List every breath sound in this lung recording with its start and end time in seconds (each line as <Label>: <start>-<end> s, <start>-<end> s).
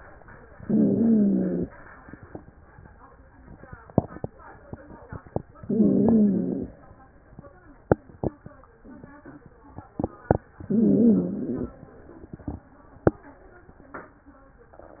Inhalation: 0.55-1.67 s, 5.62-6.74 s, 10.64-11.77 s
Wheeze: 0.55-1.67 s, 5.62-6.74 s, 10.64-11.77 s